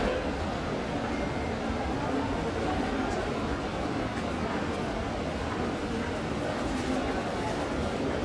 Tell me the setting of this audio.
subway station